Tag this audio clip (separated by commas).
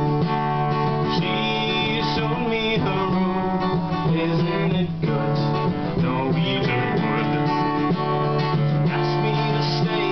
Music